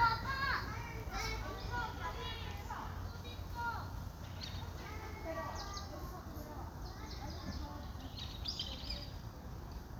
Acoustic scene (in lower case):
park